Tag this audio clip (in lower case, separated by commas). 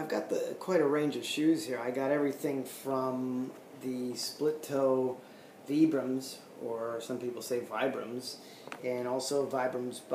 inside a small room, speech